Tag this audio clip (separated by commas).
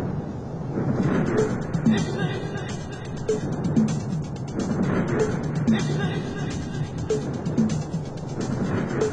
Music, House music